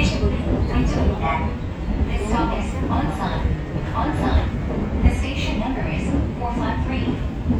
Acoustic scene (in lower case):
subway train